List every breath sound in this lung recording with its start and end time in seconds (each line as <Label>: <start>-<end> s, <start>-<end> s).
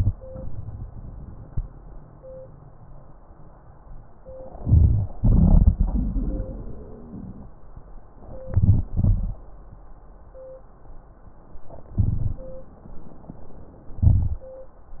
Inhalation: 4.58-5.11 s, 8.48-8.88 s, 12.02-12.39 s, 14.05-14.42 s
Exhalation: 5.18-7.50 s, 8.95-9.40 s
Wheeze: 5.77-7.50 s
Crackles: 5.19-5.75 s